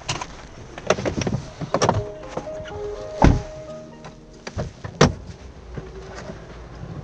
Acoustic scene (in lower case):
car